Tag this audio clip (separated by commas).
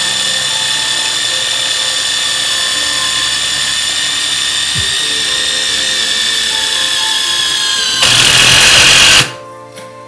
Music, Tools, Drill